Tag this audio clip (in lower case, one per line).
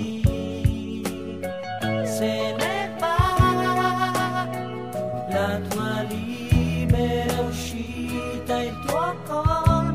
music